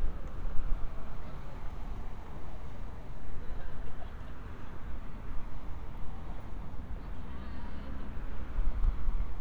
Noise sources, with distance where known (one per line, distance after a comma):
engine of unclear size, far
person or small group talking